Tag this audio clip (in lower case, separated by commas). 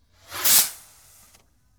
fireworks, explosion